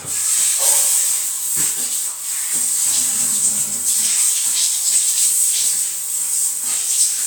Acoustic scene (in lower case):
restroom